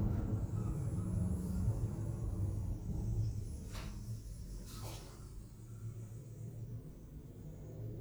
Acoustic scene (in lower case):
elevator